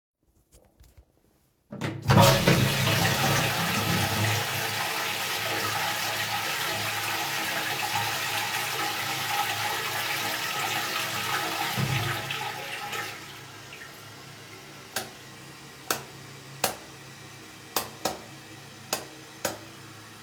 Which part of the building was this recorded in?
lavatory